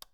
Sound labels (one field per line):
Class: switch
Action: being turned on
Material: plastic